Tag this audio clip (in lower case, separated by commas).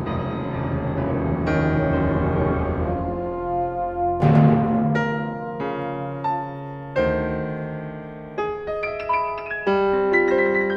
musical instrument, piano, music, classical music, orchestra